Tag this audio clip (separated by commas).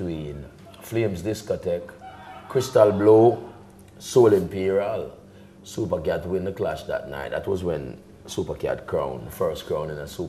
Speech